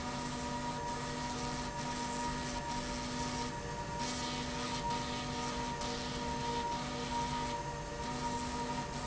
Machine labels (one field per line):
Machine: slide rail